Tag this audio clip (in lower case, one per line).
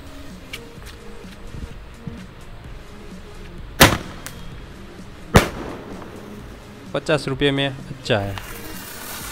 lighting firecrackers